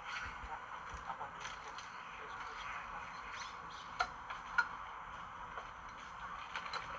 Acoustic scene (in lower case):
park